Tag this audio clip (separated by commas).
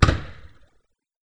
Fireworks, Explosion